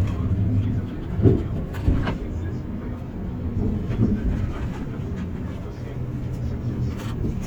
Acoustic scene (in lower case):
bus